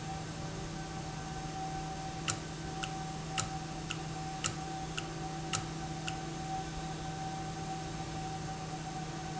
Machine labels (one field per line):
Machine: valve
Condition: normal